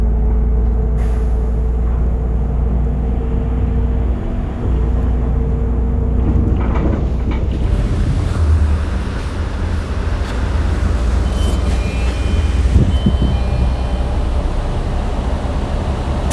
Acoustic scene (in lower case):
bus